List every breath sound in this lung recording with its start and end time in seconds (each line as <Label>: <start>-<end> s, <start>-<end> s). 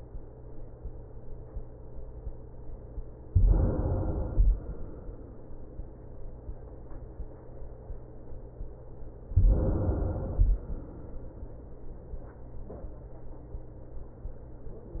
Inhalation: 3.30-4.45 s, 9.33-10.48 s
Exhalation: 4.52-5.67 s, 10.57-11.72 s